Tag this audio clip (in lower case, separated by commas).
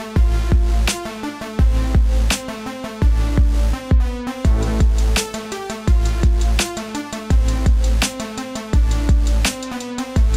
music